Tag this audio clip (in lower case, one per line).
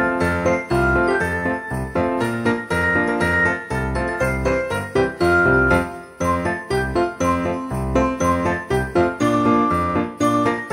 music